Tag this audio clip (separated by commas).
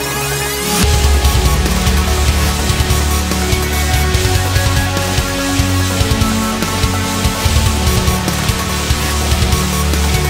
Music, Dubstep